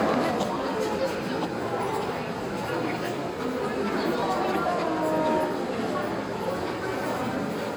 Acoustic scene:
crowded indoor space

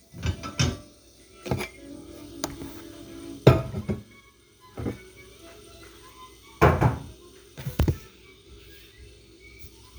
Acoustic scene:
kitchen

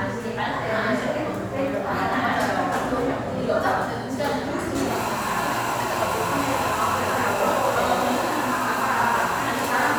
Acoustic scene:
cafe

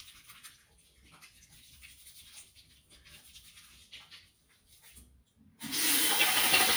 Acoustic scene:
restroom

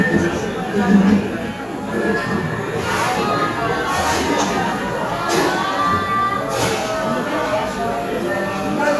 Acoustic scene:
cafe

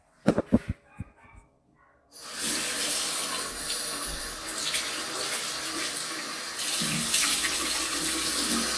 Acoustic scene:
restroom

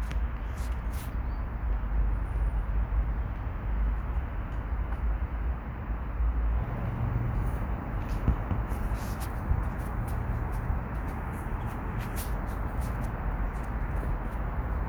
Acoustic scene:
residential area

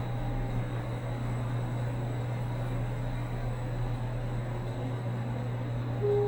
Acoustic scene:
elevator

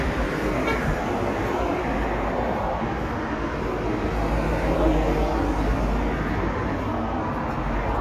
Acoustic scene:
street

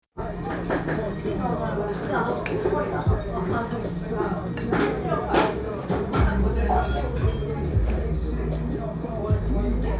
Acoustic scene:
cafe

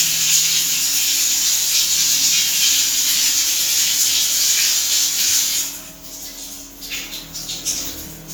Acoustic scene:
restroom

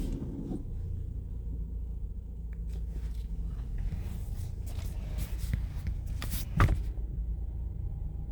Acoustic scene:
car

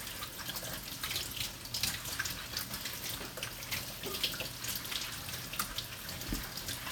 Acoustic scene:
kitchen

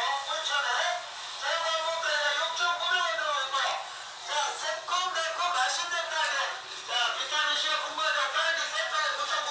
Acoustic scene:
crowded indoor space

